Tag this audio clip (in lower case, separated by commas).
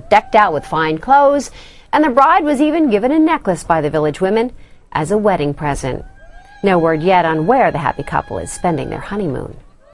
speech